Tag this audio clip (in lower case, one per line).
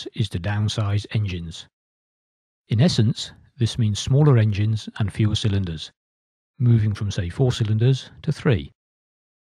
speech